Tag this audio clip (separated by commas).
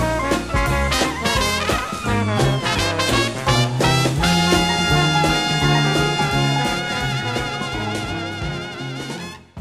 Swing music